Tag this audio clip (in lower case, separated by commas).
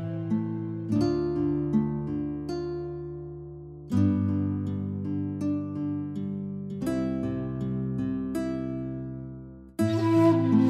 music